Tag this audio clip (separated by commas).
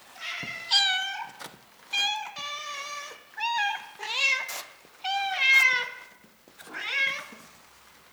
Meow, pets, Animal, Cat